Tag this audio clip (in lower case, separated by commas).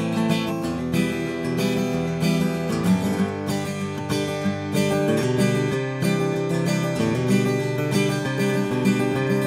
plucked string instrument, strum, musical instrument, guitar, music